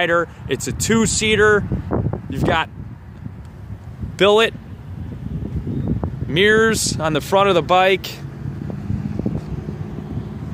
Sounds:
vehicle, speech

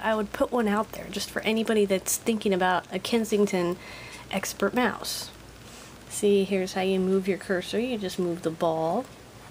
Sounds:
speech

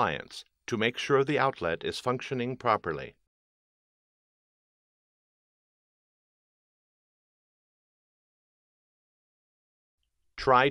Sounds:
speech

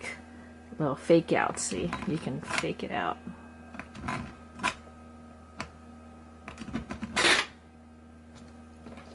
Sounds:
coin (dropping)

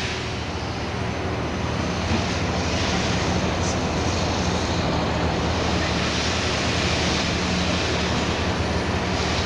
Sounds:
outside, urban or man-made, vehicle

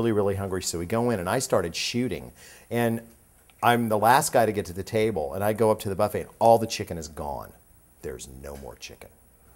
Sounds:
speech

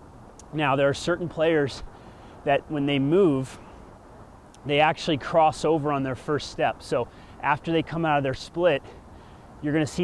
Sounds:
speech

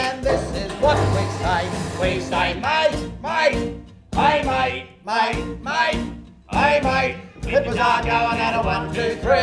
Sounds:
music

